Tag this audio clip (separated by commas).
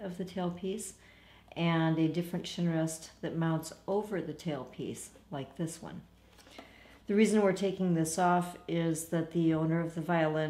Speech